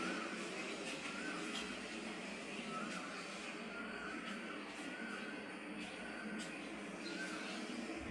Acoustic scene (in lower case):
park